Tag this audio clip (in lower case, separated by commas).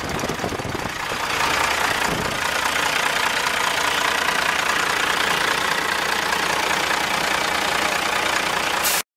vehicle